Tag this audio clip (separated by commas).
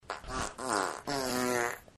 Fart